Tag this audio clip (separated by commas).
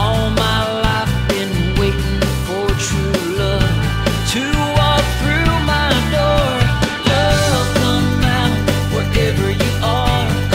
Music